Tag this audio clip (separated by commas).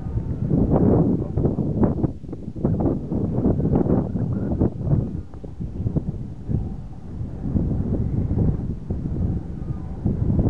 Wind noise (microphone), wind noise